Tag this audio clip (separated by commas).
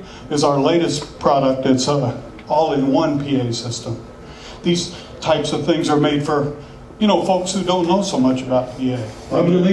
Speech